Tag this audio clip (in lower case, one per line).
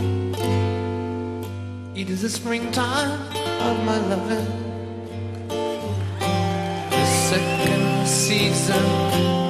music